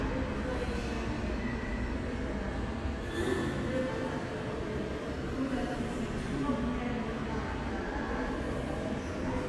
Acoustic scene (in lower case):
subway station